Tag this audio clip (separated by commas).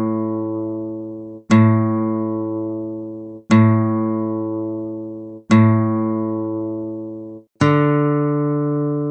Guitar, Music